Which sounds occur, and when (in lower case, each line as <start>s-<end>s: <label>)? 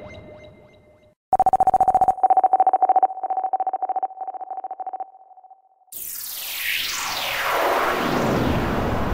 1.3s-9.1s: sound effect